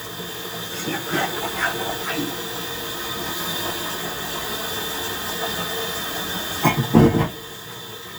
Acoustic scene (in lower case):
kitchen